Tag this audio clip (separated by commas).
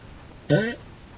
Fart